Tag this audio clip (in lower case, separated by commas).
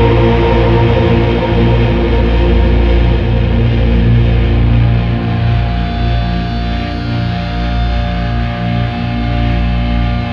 music